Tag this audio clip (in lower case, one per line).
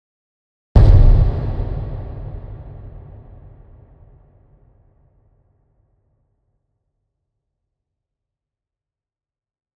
explosion